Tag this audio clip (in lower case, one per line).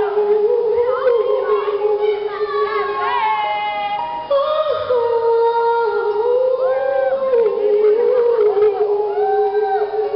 inside a large room or hall
speech
music